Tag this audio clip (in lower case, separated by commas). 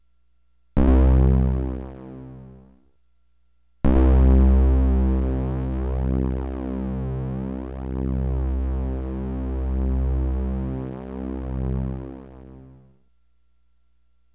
music, musical instrument, keyboard (musical)